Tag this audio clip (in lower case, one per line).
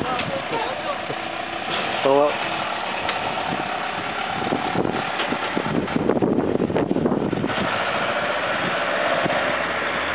speech